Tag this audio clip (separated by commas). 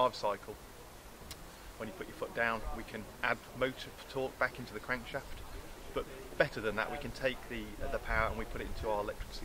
Speech